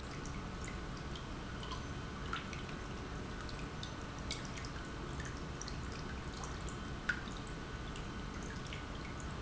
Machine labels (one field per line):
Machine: pump